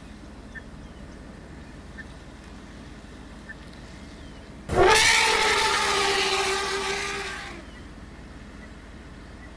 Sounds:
elephant trumpeting

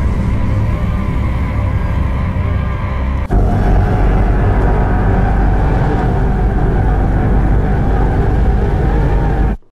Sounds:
Sound effect

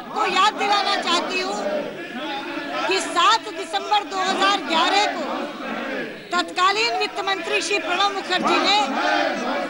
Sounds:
monologue, Female speech, Speech

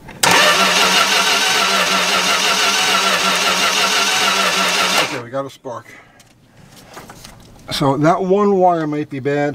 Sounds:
car engine starting

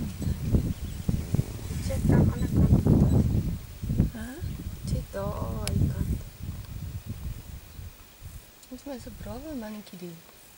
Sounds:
Speech

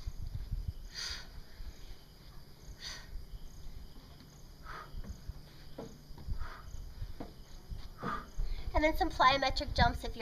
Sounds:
outside, rural or natural, Speech

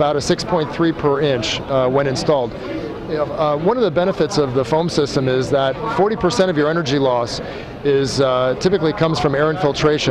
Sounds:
Speech

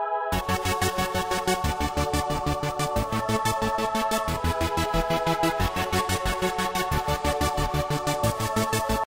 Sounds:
Music

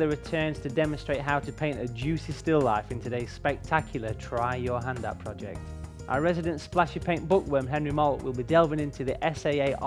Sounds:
Music, Speech

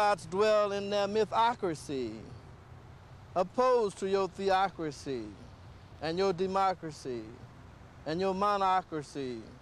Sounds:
Speech

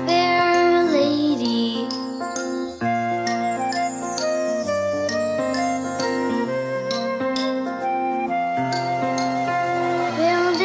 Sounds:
Music

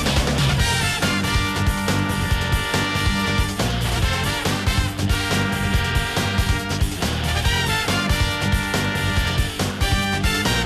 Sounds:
Music

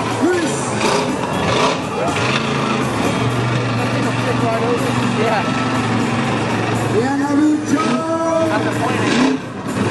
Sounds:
Vehicle, Speech

